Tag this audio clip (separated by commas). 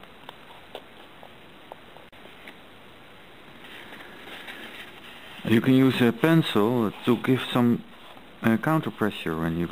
Speech